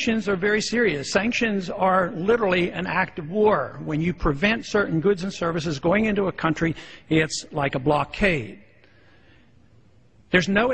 A man is giving a speech